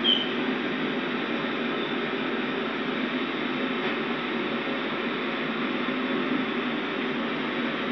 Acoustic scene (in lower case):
subway train